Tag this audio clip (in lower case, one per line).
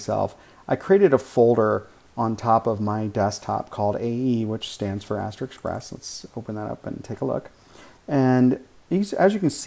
speech